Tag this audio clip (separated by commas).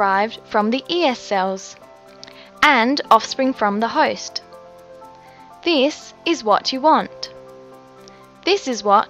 Music, Speech